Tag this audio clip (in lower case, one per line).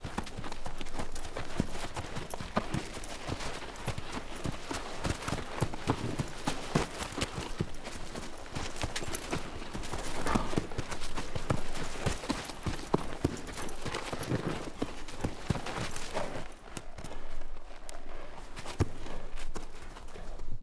animal
livestock